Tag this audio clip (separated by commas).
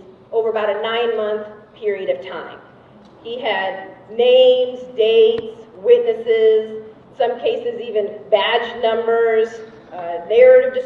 Speech